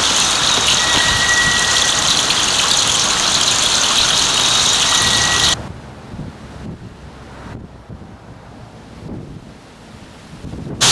Birds are singing and high-pitched cackling is present, then the wind is blowing